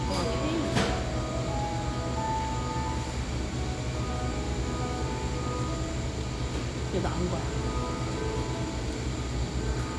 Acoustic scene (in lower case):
cafe